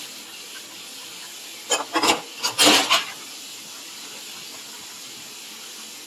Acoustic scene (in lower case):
kitchen